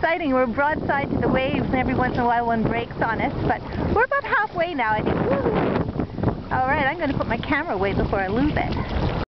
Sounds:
boat, speech, vehicle

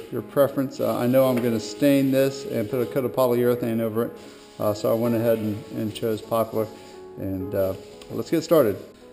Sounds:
music, speech

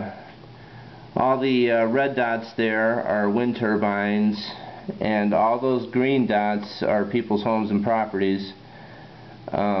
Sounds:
speech

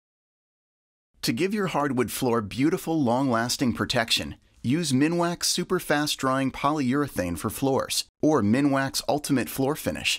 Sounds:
speech

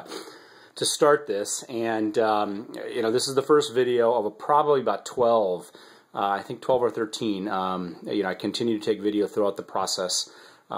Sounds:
speech

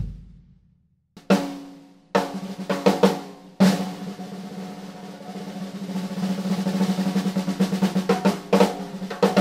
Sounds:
drum roll, bass drum, snare drum, percussion, drum, playing snare drum

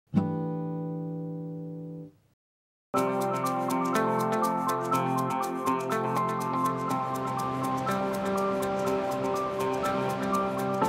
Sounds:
outside, rural or natural, music

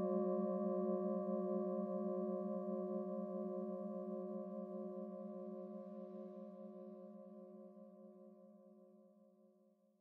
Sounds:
gong

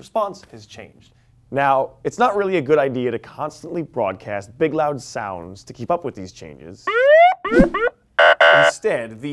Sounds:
inside a large room or hall, speech

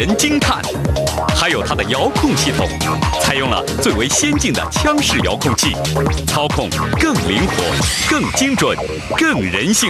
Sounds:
speech, music

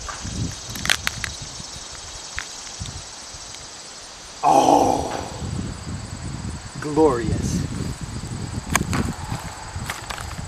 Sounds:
outside, rural or natural, speech

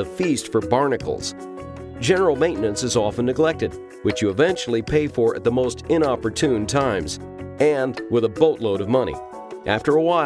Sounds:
music, speech

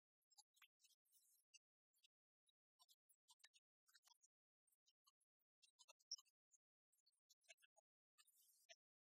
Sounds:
speech, music

